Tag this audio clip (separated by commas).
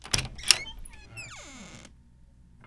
Squeak